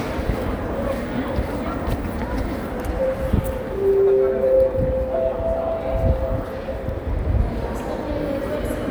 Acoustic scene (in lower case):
crowded indoor space